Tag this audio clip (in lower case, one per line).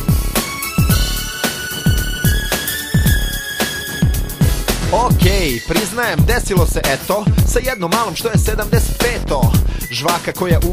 music